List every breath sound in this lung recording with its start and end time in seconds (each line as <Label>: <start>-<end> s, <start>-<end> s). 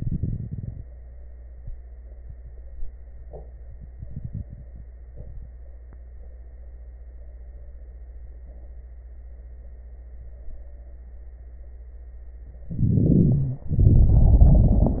Inhalation: 12.68-13.71 s
Exhalation: 13.74-15.00 s
Crackles: 12.68-13.71 s, 13.74-15.00 s